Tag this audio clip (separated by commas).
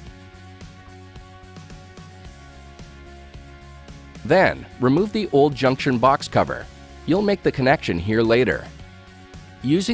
Speech, Music